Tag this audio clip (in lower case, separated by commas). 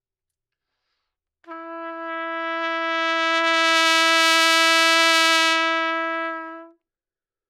trumpet, brass instrument, musical instrument, music